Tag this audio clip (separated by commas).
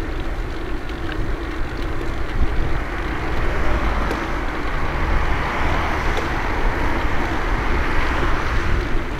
Vehicle, Car